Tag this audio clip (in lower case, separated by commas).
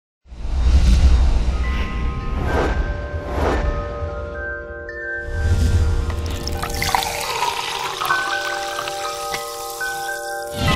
music